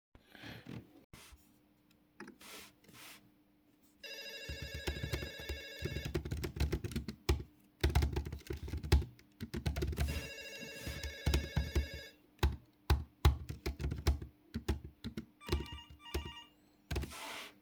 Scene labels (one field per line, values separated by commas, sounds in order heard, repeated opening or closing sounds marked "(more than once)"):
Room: office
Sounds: phone ringing, keyboard typing